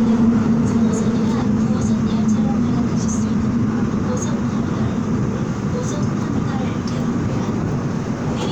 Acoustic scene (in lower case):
subway train